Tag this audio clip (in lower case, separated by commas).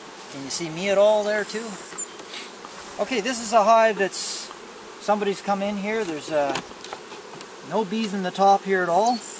bee or wasp, insect, fly